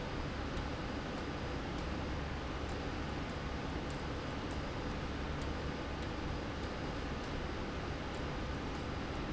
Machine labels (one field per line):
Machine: slide rail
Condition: abnormal